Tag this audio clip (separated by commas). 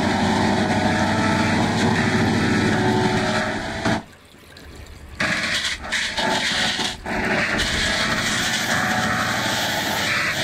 Music